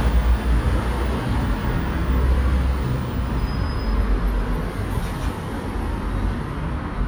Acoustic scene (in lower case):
street